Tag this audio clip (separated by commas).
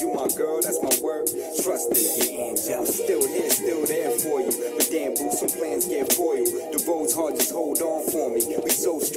Music, Exciting music